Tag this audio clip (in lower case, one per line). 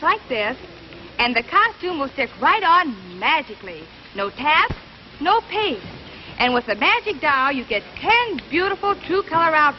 speech